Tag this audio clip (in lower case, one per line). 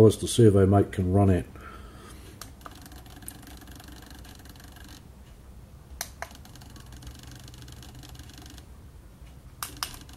speech